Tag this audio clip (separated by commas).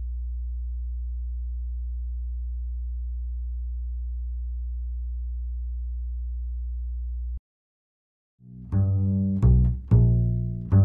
Music